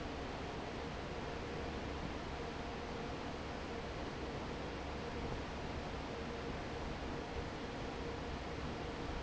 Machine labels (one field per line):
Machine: fan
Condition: normal